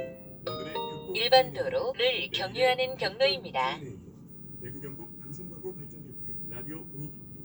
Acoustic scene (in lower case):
car